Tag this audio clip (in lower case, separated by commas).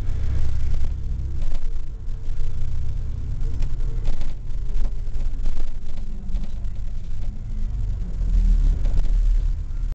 vehicle